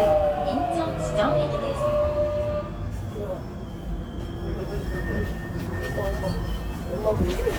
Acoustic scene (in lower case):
subway train